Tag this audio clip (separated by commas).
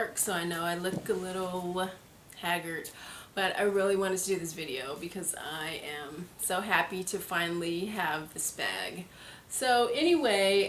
Speech